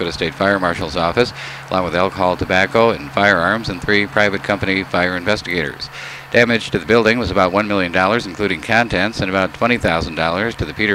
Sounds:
vehicle, speech, truck

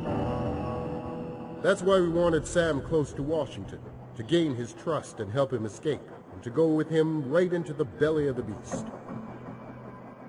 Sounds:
music, speech

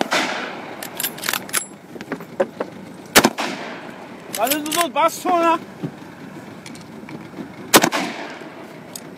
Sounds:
speech

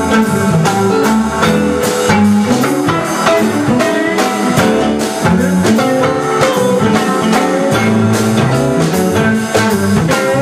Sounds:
music

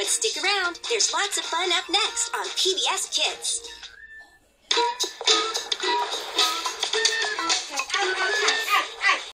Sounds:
speech, music

